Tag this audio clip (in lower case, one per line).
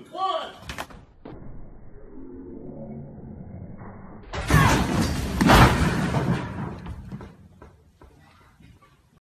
speech